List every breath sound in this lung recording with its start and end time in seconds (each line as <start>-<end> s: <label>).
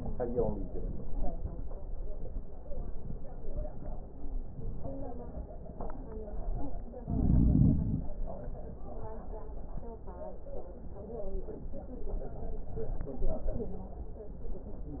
No breath sounds were labelled in this clip.